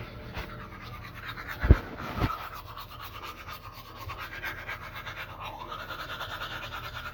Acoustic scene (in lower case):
restroom